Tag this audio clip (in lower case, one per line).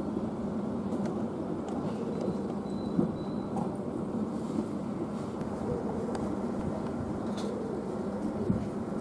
otter growling